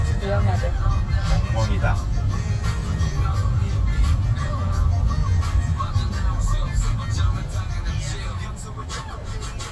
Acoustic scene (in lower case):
car